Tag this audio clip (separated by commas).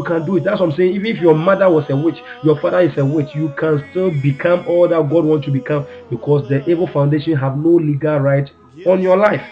Speech